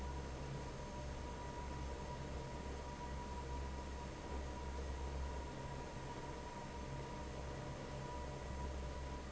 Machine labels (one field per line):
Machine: fan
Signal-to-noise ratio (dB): 6 dB